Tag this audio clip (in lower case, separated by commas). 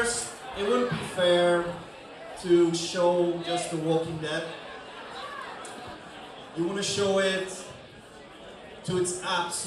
monologue, male speech, speech